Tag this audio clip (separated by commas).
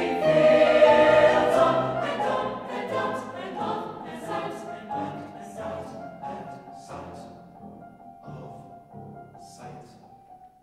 Choir, Music, Female singing